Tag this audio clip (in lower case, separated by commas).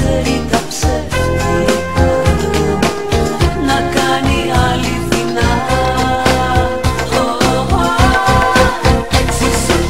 pop music, music, electronic music